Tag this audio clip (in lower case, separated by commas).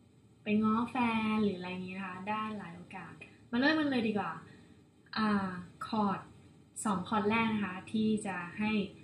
speech